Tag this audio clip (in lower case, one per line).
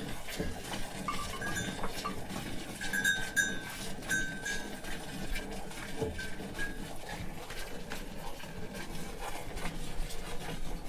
clink